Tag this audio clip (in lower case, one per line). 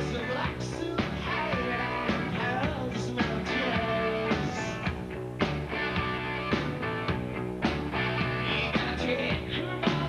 music